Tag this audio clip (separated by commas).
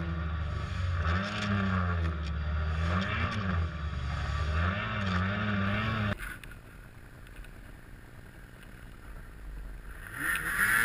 driving snowmobile